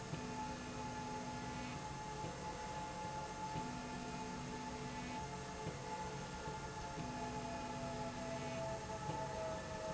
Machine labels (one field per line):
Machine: slide rail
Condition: normal